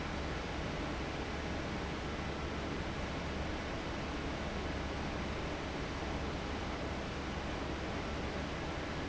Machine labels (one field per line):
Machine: fan